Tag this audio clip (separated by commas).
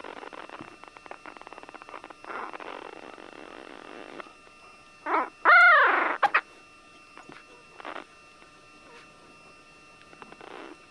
Dog, Animal, pets